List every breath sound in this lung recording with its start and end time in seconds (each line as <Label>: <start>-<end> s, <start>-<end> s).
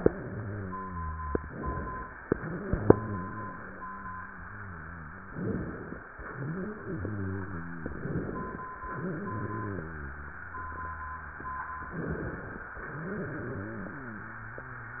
Inhalation: 1.41-2.24 s, 5.30-6.13 s, 7.92-8.75 s, 11.91-12.74 s
Exhalation: 2.30-5.27 s, 6.11-7.89 s, 8.75-11.90 s, 12.78-15.00 s
Wheeze: 0.00-1.40 s, 0.00-1.40 s, 2.30-5.27 s, 6.11-7.89 s, 8.75-11.90 s, 12.78-15.00 s